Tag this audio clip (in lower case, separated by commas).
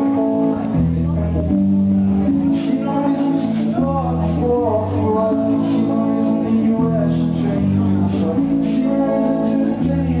music, singing